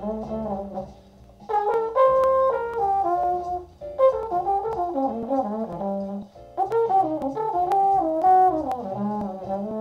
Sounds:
Brass instrument, playing trombone, Trombone

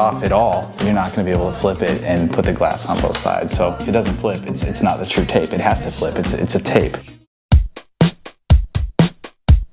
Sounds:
Speech, Music, Drum machine

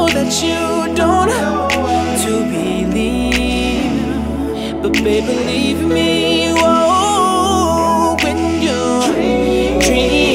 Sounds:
Music

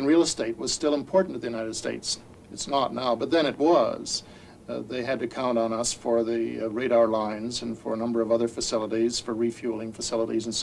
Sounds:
Speech

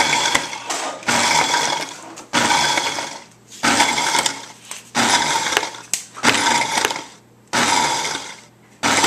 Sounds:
Blender

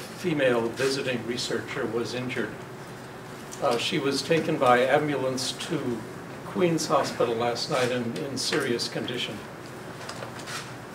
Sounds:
Speech

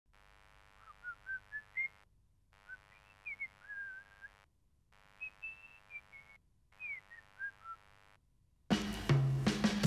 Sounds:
Music, outside, rural or natural

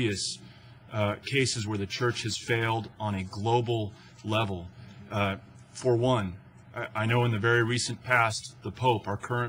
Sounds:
Speech, man speaking

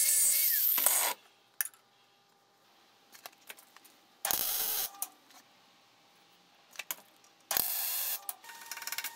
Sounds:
forging swords

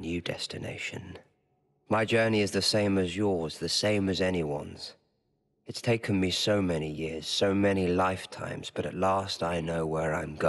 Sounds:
Speech, monologue, man speaking

